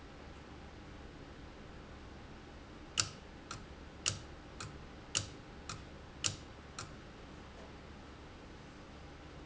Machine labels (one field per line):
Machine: valve